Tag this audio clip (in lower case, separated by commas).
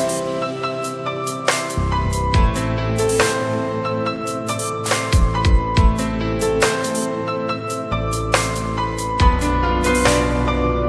music, electronic music